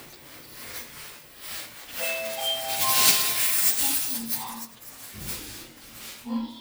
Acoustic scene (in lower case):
elevator